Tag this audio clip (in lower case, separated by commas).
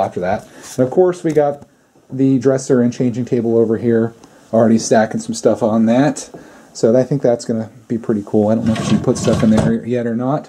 speech